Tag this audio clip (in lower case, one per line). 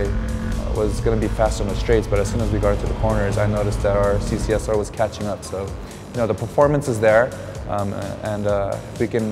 speech
music